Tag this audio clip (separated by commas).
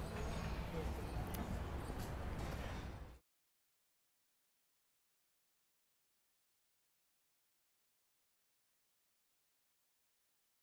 Speech